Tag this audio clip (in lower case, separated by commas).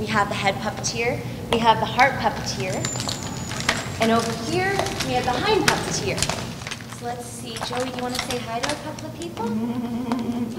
speech, clip-clop